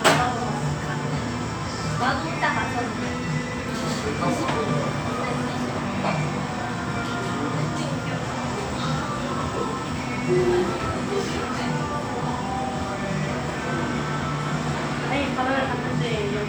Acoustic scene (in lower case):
cafe